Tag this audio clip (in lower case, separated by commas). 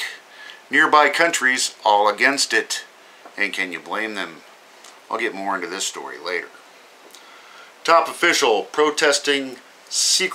speech